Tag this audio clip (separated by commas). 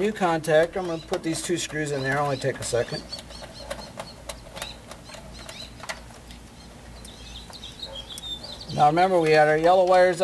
Speech